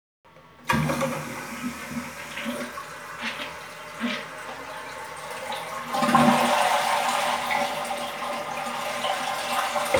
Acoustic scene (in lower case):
restroom